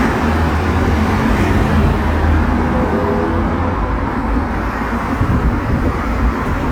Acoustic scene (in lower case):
street